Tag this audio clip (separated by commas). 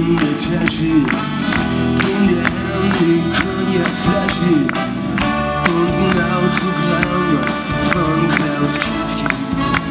Music